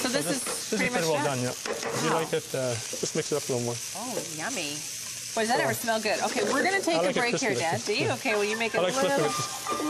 Man and woman speaking while stir frying food